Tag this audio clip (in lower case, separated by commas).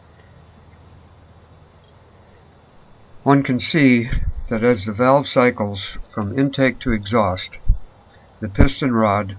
speech